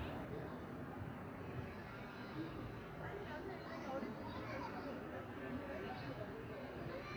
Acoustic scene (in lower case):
residential area